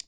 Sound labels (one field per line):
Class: switch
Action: being turned on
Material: plastic